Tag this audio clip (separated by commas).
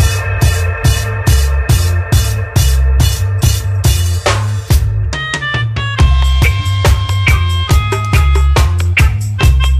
Music